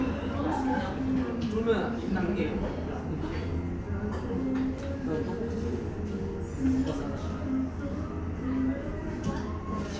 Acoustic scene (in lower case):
restaurant